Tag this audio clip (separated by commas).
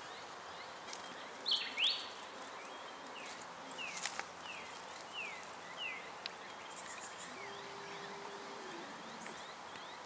outside, rural or natural, Animal, Snake